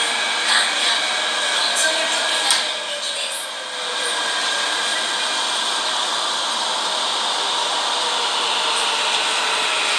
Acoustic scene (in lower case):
subway train